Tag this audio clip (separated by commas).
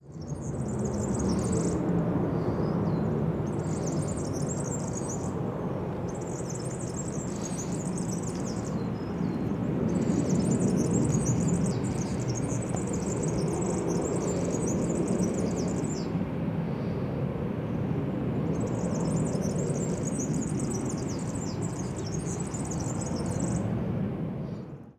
Wild animals, Bird, bird song, Animal